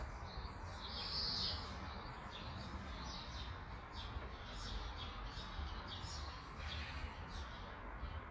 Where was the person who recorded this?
in a park